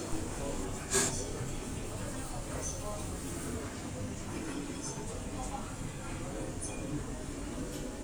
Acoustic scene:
crowded indoor space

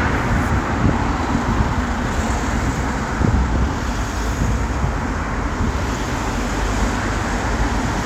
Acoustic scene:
street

